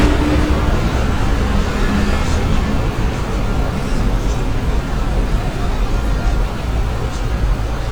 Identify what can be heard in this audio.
engine of unclear size